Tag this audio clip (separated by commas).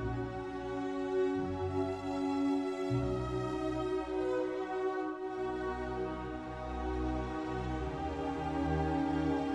Music, Classical music